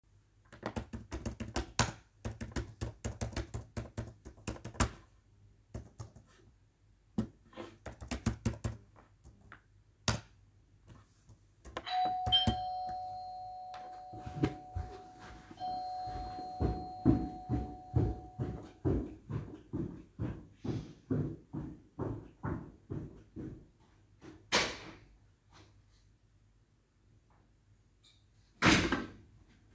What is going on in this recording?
While I�m typing on the keyboard the bell rang and I went to the door to check and open it and close it after